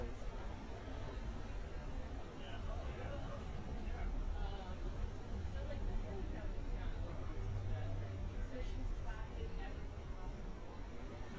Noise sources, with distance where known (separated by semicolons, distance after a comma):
person or small group talking